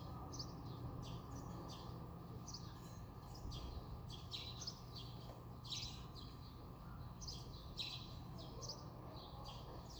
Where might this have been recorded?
in a residential area